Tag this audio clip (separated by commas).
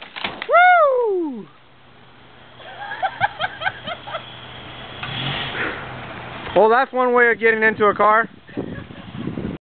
Vehicle, Car, Speech